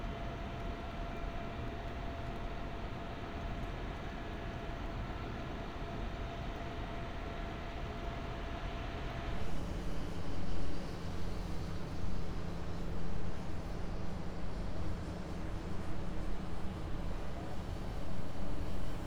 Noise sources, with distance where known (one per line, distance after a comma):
engine of unclear size